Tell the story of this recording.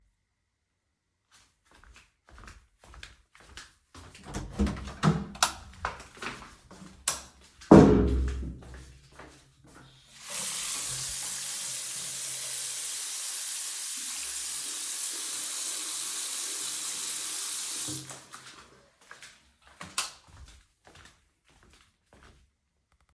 I held the phone while entering the bathroom. I toggled the light switch at the beginning of the scene. I then walked to the sink and turned on the water. The footsteps and running water occur in close succession.